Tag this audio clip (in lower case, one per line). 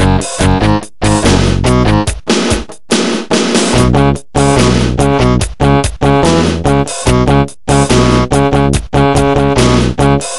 music